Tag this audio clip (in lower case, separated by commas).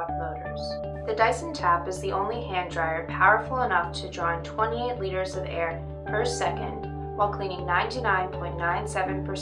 music, speech